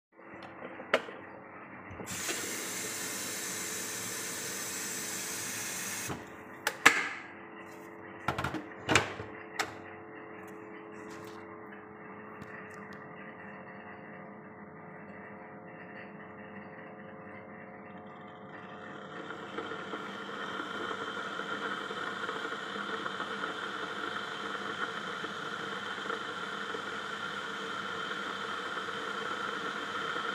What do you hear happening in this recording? I poored water into the tank and inserted it into the coffee machine, then after I turned coffee machine on. In the background vacuum cleaner was recharging it's supplies.